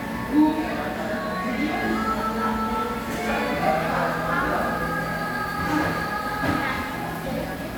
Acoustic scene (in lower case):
crowded indoor space